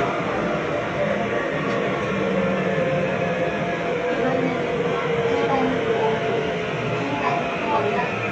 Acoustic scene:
subway train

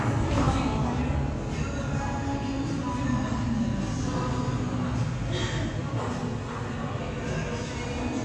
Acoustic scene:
cafe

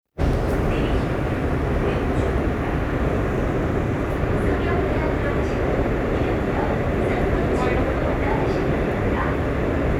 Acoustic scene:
subway train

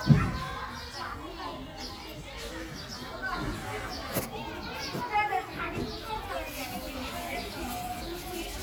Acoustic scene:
park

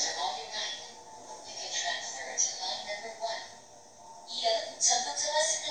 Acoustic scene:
subway train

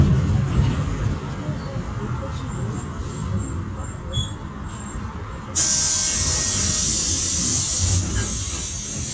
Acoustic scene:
bus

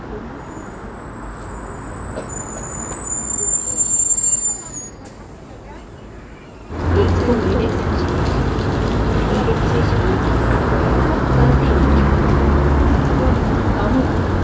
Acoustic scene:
street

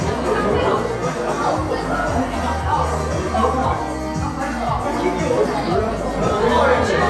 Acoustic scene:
crowded indoor space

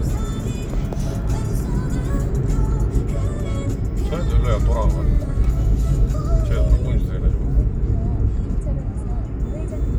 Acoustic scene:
car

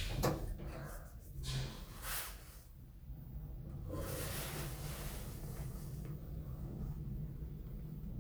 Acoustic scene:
elevator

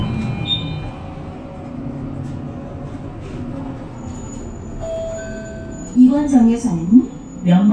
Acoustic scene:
bus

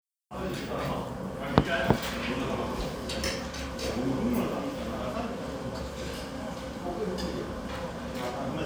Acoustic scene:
restaurant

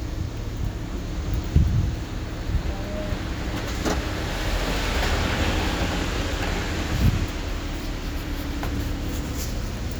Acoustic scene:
street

